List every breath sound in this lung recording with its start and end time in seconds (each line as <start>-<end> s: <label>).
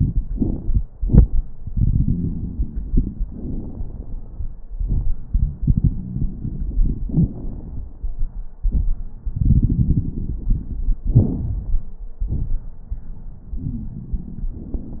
0.00-0.77 s: inhalation
0.00-0.77 s: crackles
0.97-1.49 s: exhalation
0.97-1.49 s: crackles
1.57-3.25 s: crackles
1.62-3.26 s: inhalation
3.25-4.60 s: exhalation
3.25-4.60 s: crackles
5.70-7.07 s: inhalation
5.70-7.07 s: crackles
7.09-8.46 s: exhalation
7.09-8.46 s: crackles
9.26-11.00 s: inhalation
9.26-11.00 s: crackles
11.10-12.00 s: exhalation
11.10-12.00 s: crackles